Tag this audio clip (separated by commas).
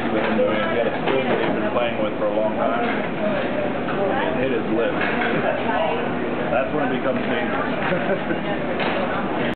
Speech